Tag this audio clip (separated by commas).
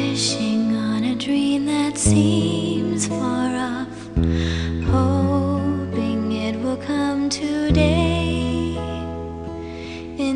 Music